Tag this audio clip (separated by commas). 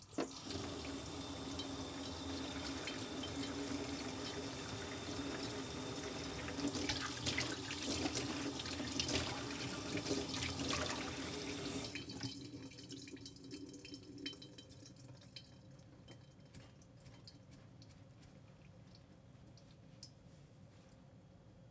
Sink (filling or washing), Water tap, Domestic sounds